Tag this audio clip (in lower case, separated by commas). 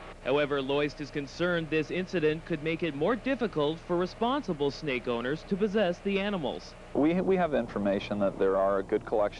speech, outside, urban or man-made